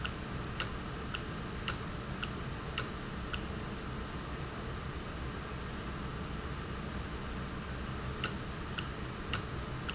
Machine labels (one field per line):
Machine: valve